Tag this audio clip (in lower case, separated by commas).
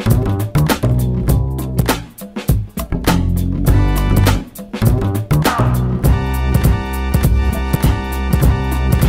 music